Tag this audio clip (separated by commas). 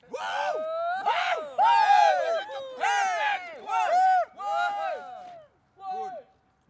Human group actions, Cheering